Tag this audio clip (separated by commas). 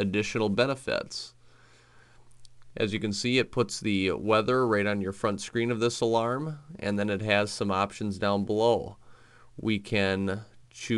Speech